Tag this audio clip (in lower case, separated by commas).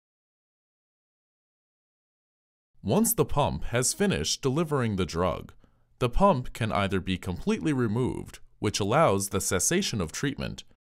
speech